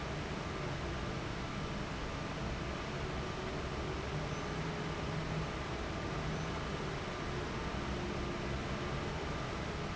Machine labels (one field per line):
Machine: fan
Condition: abnormal